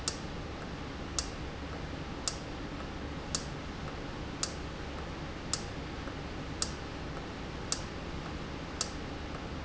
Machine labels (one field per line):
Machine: valve